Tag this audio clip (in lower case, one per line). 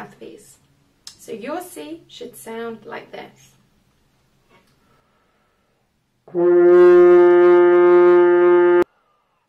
playing french horn